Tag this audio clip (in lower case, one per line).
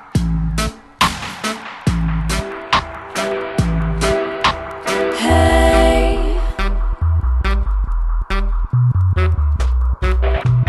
electronic music
dubstep
music